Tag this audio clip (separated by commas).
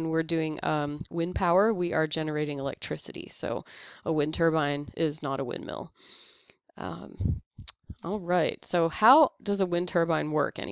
Speech